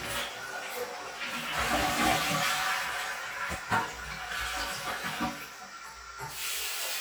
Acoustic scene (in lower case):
restroom